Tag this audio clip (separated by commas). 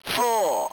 Human voice, Speech, Speech synthesizer